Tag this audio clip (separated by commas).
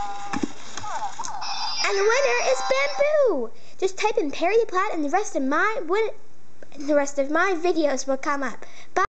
Speech